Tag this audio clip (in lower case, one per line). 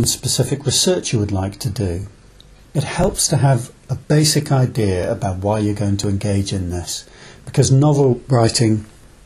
speech